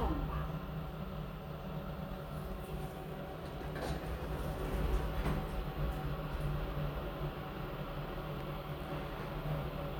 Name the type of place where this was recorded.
elevator